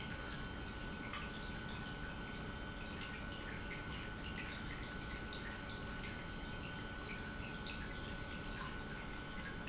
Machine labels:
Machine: pump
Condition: normal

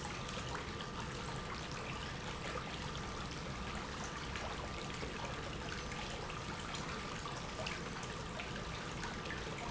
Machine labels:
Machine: pump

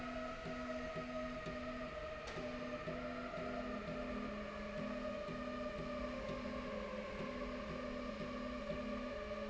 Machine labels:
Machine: slide rail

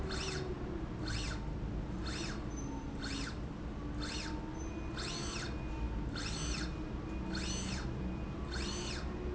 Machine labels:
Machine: slide rail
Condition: normal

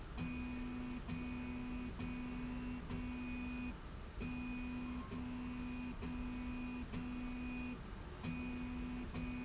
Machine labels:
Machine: slide rail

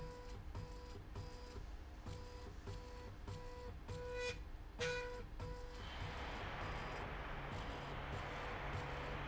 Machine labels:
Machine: slide rail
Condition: normal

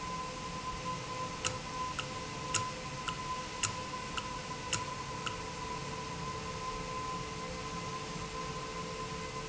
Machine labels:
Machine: valve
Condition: normal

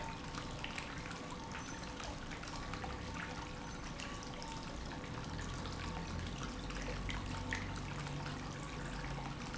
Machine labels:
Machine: pump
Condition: normal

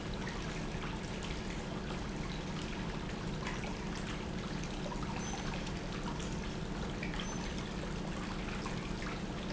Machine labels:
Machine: pump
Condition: normal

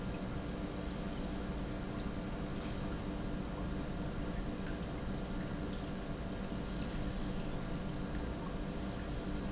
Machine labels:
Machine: pump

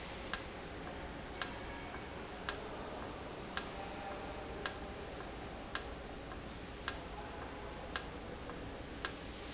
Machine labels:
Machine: valve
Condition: normal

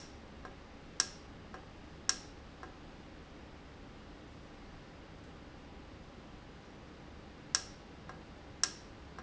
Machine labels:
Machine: valve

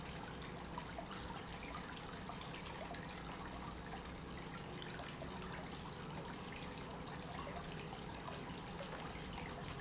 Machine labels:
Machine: pump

